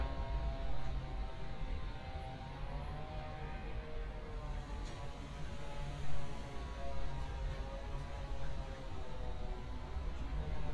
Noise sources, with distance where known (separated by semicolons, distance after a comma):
unidentified powered saw, far